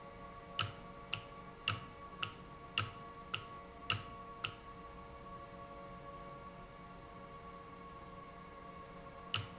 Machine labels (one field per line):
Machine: valve